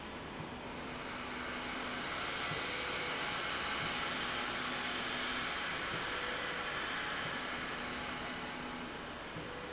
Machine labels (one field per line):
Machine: slide rail